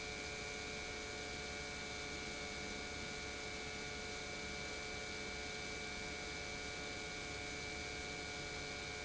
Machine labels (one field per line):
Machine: pump